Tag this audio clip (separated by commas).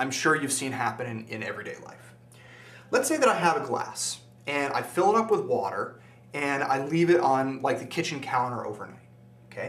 Speech